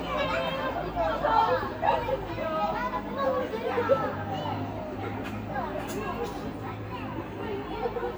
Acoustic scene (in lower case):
residential area